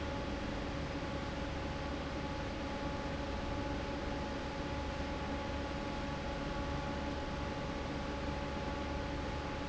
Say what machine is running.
fan